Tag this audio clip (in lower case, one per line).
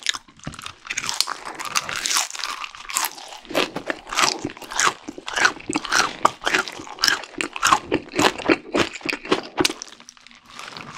people eating noodle